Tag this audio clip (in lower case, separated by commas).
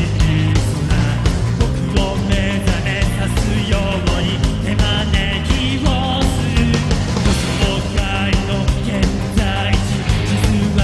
music